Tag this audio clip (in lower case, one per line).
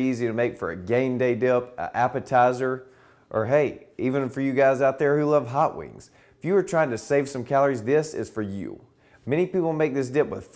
speech